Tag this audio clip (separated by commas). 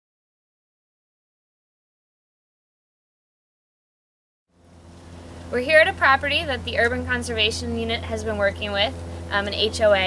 Speech